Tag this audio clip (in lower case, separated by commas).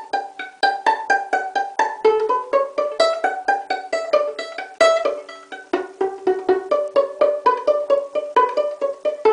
pizzicato, fiddle